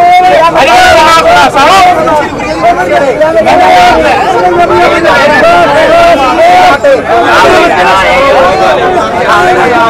People are yelling